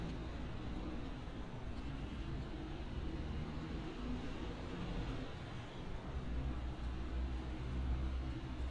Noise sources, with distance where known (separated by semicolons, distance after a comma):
engine of unclear size, far